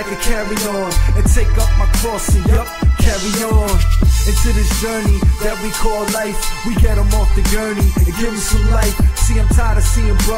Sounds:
music
rapping
hip hop music

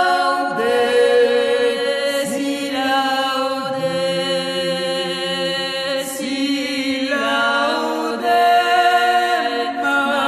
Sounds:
mantra

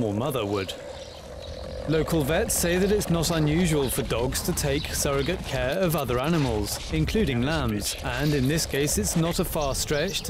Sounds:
speech
animal

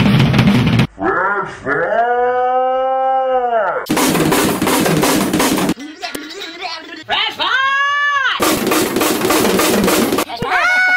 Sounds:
speech
inside a large room or hall
drum roll
musical instrument
music

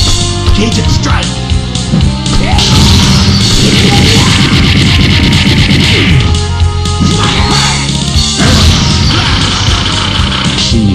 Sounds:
speech
music

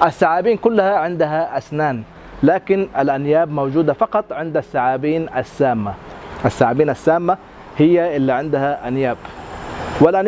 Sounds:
speech
outside, urban or man-made

